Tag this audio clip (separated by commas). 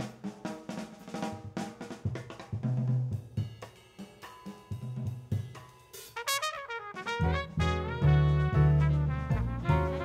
Hi-hat, Cymbal